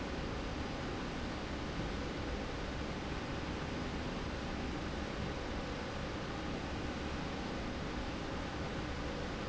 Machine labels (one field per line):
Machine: slide rail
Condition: normal